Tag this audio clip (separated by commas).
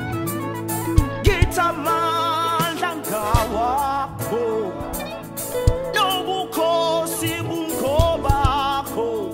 Gospel music, Music